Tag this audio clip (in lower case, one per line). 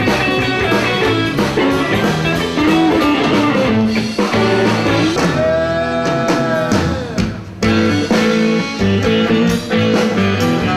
musical instrument
blues
guitar
plucked string instrument
music